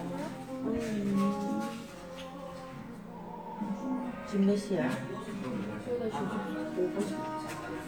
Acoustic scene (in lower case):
crowded indoor space